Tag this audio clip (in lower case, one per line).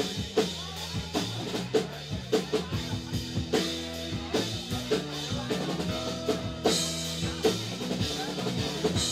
music
speech